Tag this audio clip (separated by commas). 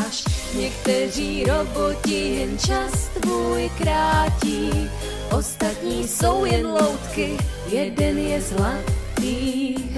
Music